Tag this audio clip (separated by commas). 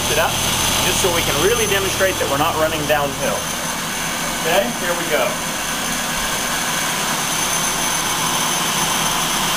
Speech